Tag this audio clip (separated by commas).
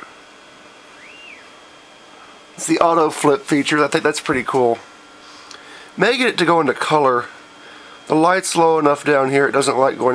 Speech